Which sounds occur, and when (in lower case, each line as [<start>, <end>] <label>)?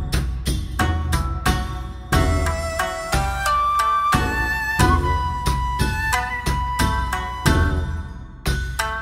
[0.00, 9.01] music